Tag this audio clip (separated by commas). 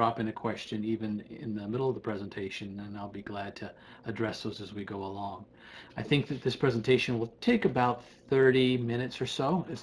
Speech